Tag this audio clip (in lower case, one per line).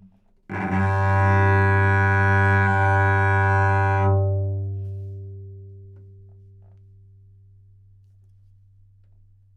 music
musical instrument
bowed string instrument